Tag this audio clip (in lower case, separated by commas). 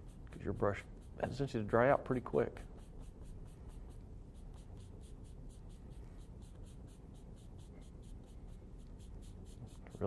writing